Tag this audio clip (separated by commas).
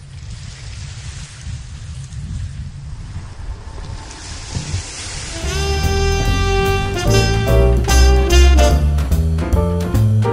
Music